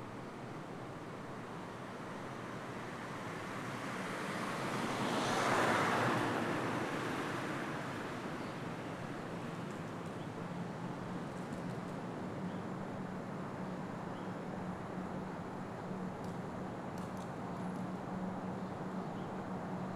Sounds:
vehicle
motor vehicle (road)
traffic noise

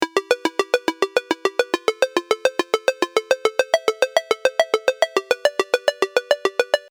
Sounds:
alarm
telephone
ringtone

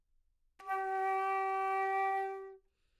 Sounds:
musical instrument
wind instrument
music

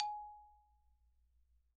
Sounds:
mallet percussion
musical instrument
xylophone
music
percussion

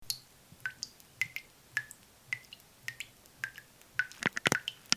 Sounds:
drip
sink (filling or washing)
domestic sounds
water
liquid
faucet

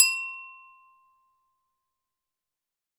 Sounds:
glass

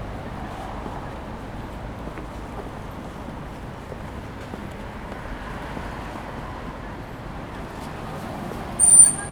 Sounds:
screech

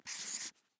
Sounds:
domestic sounds
writing

